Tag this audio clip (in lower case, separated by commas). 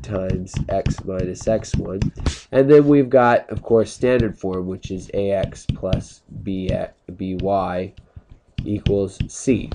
speech